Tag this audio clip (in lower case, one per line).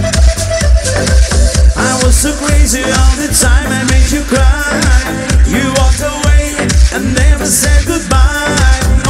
music
disco